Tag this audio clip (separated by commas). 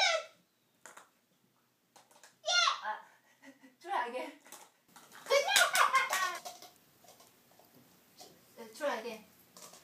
Speech